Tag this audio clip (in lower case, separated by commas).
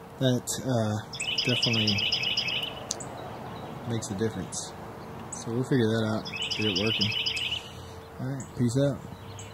outside, rural or natural, speech, bird song